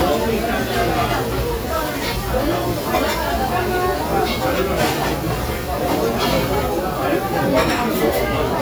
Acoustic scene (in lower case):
restaurant